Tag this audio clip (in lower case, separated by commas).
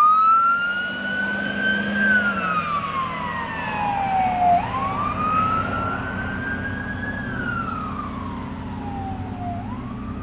ambulance (siren), police car (siren), ambulance siren